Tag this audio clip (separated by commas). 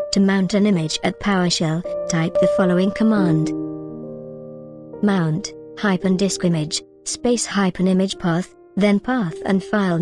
Music, Speech